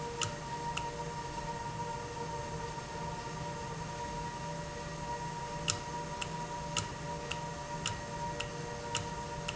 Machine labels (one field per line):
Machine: valve